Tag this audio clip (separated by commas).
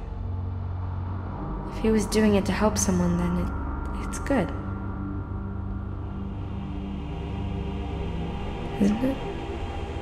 Female speech, Music, Speech, monologue